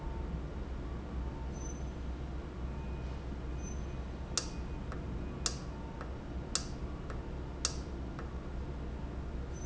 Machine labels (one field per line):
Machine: valve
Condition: normal